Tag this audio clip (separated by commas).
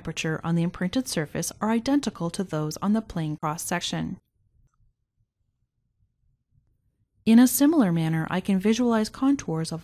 Speech